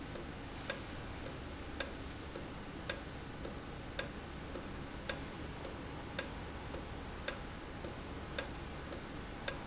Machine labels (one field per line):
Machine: valve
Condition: normal